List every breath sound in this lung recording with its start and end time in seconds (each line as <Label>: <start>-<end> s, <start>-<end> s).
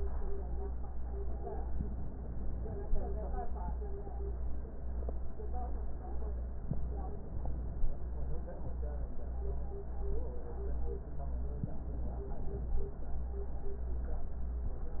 Inhalation: 11.51-12.85 s